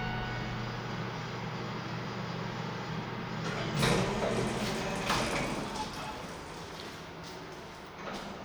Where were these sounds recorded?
in an elevator